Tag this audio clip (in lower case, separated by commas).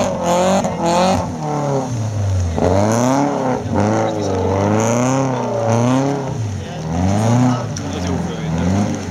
speech